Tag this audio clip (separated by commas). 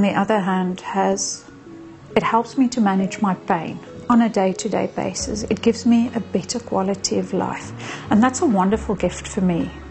Female speech